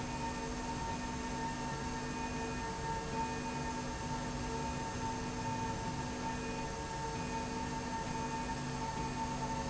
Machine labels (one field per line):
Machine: slide rail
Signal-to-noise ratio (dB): -6 dB